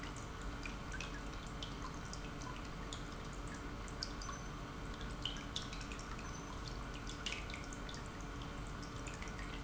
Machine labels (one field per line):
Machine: pump